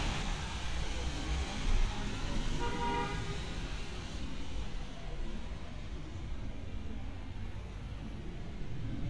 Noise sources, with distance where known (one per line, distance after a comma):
car horn, near